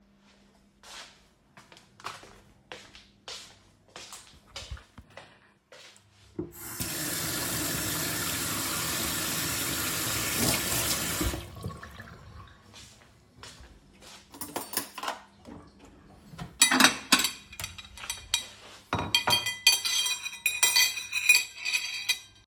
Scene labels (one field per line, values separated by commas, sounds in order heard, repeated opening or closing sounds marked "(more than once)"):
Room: kitchen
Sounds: footsteps, running water, cutlery and dishes